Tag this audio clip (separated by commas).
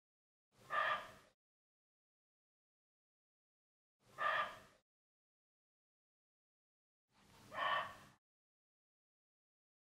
fox barking